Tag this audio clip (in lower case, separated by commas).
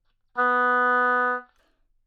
wind instrument, music, musical instrument